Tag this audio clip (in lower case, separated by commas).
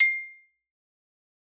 musical instrument, percussion, mallet percussion, xylophone, music